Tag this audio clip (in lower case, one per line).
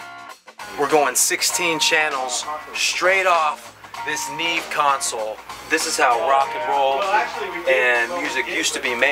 music
theme music
speech